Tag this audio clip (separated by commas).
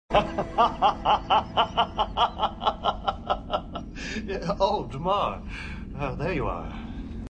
Speech